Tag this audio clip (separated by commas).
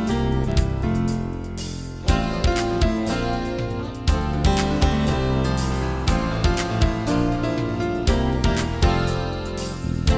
Music